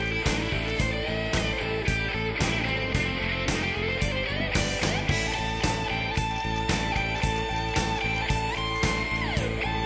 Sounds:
music

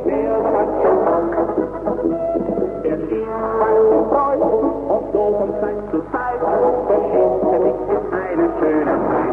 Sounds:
music, brass instrument

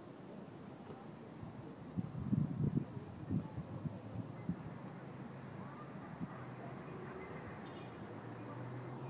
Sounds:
speech

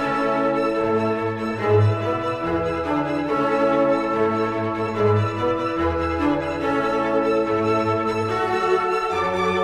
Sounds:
music, violin, musical instrument

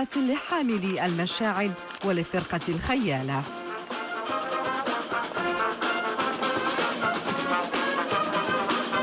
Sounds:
speech, music

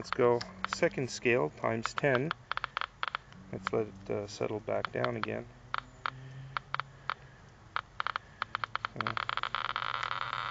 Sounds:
speech

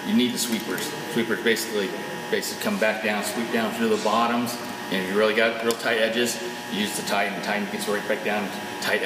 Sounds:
speech

